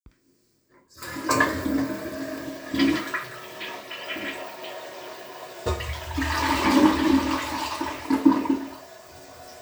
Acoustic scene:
restroom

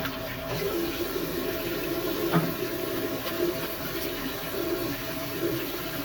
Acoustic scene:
restroom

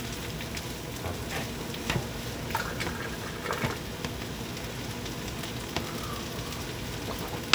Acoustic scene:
kitchen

